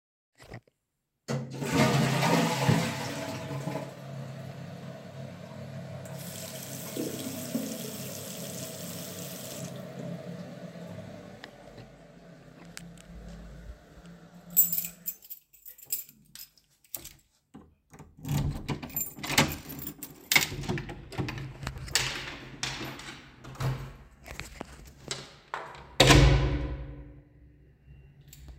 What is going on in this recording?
I flush the toilet, turn on the tap, turn off the tap, walk though the hallway, take my keys out, unlock then open the door, walk out, then close the door.